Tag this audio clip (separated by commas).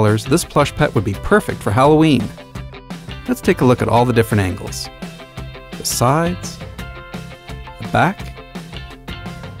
Music, Speech